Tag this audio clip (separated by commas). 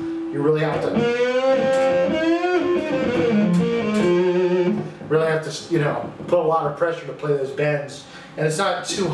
Electric guitar, Guitar, Music, Plucked string instrument, Speech, Strum, Acoustic guitar, Musical instrument